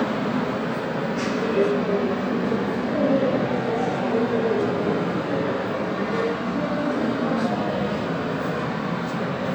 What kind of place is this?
subway station